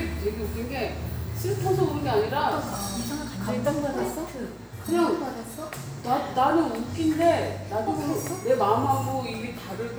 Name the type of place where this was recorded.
cafe